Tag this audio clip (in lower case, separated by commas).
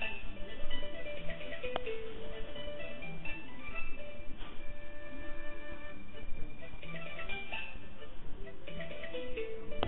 funny music, music